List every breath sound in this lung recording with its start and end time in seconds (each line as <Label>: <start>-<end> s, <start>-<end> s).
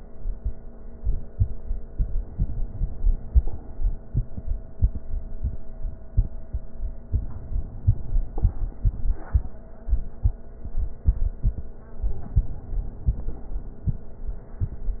Inhalation: 2.30-3.61 s, 7.10-8.48 s, 11.96-13.34 s